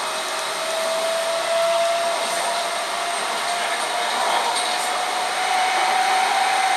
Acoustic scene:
subway train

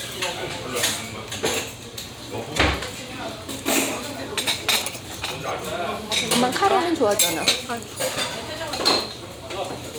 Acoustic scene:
restaurant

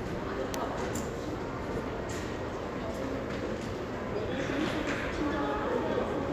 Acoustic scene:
crowded indoor space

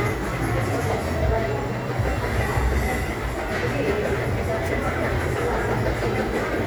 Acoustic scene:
crowded indoor space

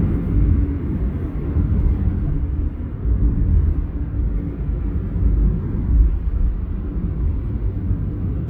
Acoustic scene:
car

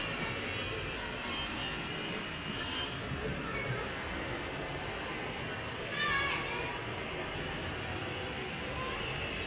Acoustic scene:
residential area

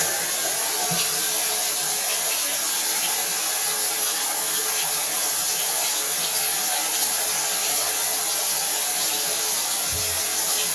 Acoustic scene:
restroom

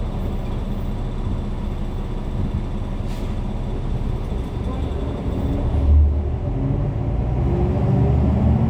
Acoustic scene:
bus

